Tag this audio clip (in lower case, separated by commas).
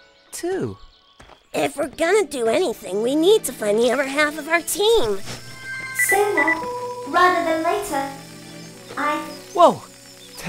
speech, music